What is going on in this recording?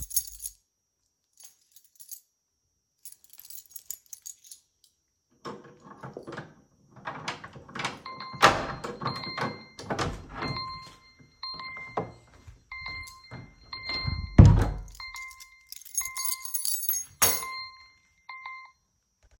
I held the phone and jingled my keys to unlock the front door. As I pushed the door open my phone notification went off.